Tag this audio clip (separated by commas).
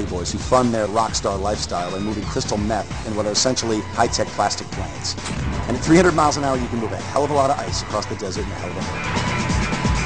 Speech, Music